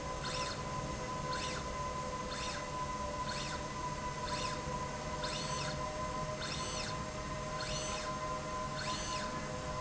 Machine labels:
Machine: slide rail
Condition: normal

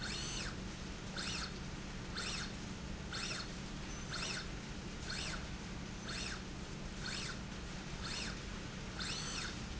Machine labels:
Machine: slide rail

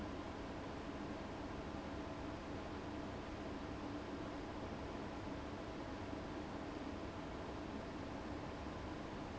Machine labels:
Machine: fan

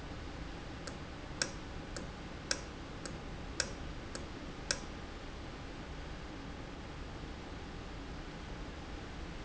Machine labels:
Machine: valve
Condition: normal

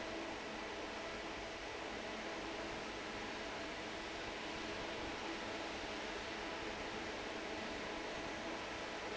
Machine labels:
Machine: fan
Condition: normal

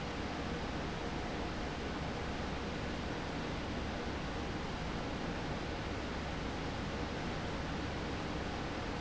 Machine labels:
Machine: fan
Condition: abnormal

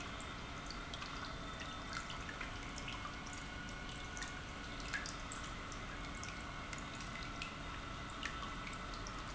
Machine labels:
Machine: pump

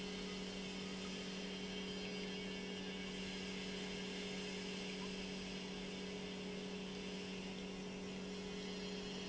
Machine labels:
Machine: pump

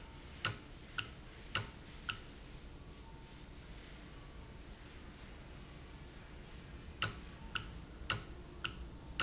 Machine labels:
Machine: valve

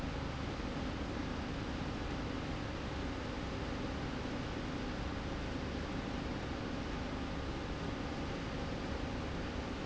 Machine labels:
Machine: slide rail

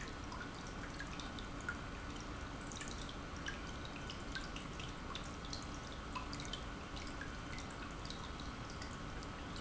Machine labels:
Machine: pump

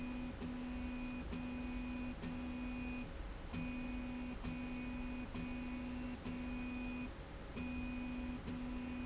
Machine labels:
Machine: slide rail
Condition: normal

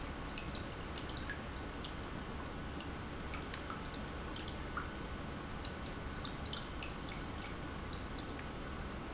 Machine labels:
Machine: pump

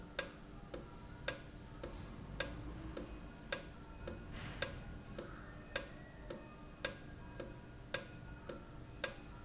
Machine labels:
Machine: valve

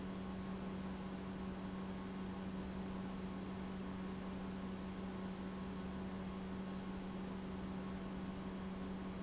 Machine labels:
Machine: pump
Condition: normal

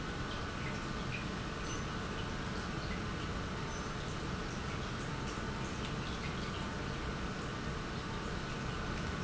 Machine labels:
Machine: pump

